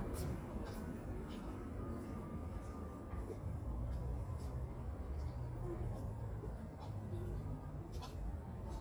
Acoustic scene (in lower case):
residential area